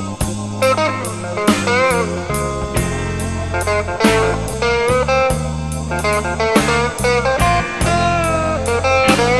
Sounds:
Music

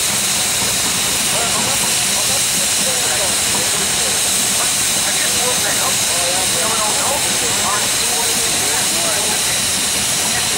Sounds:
Engine, Speech

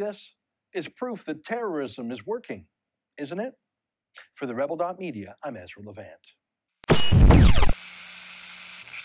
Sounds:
Speech

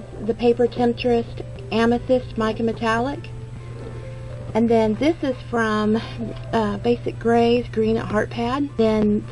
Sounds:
Music, Speech

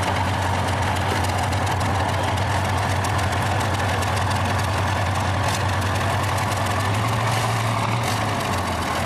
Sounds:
Vehicle, Motor vehicle (road)

